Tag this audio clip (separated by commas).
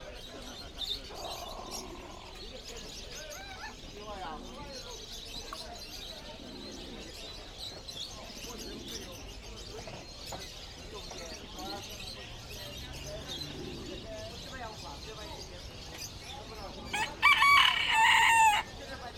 Animal, Fowl, Chicken, Bird, livestock, Wild animals